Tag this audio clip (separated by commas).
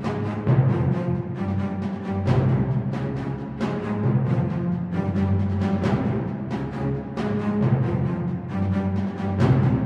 Music, Soundtrack music